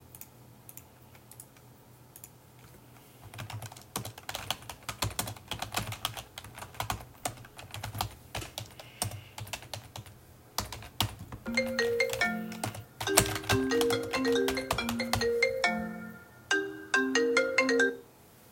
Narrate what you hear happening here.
I was sitting at a desk typing on my laptop when my phone started ringing next to me.